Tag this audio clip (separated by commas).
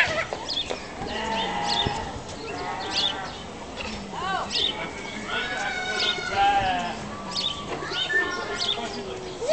Animal